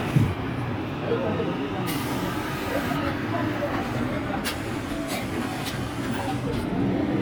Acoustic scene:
street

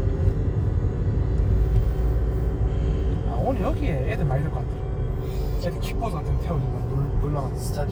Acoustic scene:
car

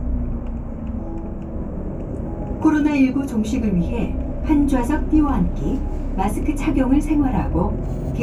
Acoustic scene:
bus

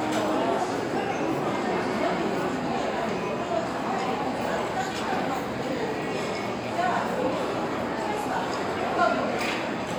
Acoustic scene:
restaurant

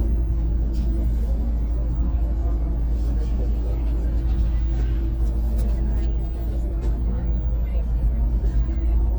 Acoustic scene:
bus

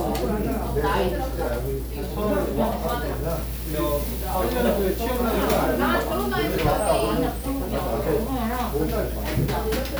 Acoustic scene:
crowded indoor space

